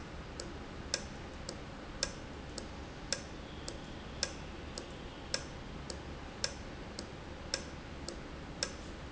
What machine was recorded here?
valve